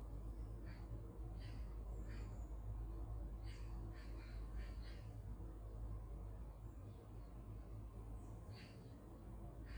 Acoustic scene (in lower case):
park